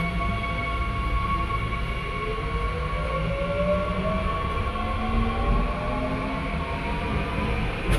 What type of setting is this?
subway train